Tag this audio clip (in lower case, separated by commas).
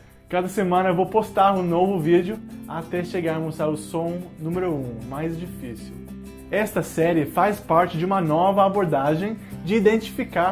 music, speech